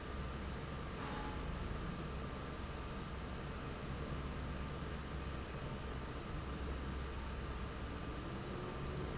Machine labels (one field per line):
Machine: fan